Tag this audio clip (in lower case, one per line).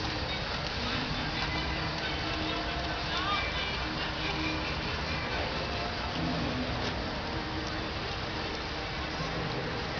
music